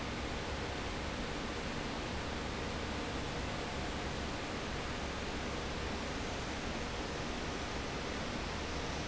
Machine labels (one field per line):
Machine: fan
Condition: abnormal